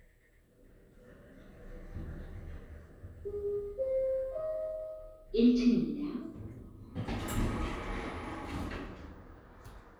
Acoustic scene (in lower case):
elevator